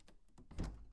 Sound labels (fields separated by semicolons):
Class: cupboard; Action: opening; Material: wooden